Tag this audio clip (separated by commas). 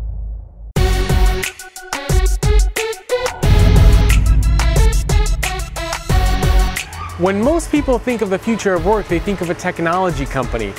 Music, Speech